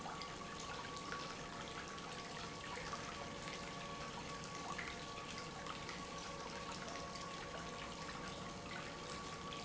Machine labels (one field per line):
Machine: pump